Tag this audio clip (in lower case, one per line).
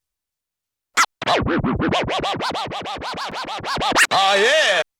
scratching (performance technique)
music
musical instrument